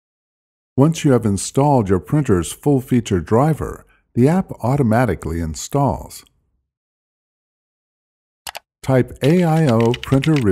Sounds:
Speech

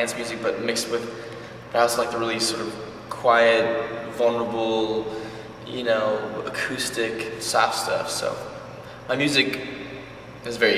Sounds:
Speech

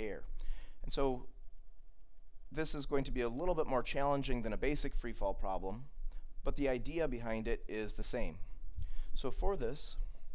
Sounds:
Speech

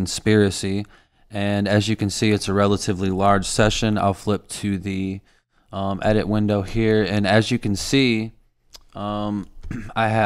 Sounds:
Speech

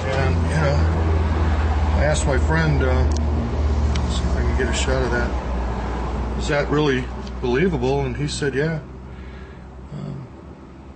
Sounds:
outside, urban or man-made, Speech

